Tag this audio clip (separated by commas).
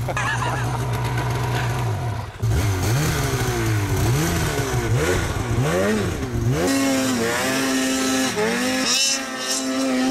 driving snowmobile